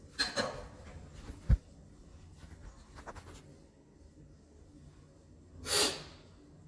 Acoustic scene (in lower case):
elevator